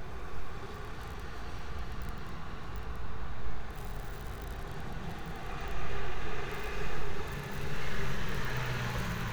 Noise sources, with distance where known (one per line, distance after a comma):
engine of unclear size